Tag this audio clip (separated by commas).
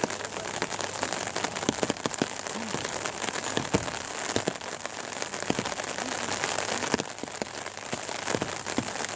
Rain, Rain on surface